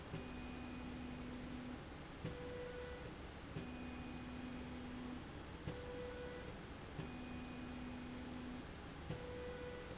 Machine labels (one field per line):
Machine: slide rail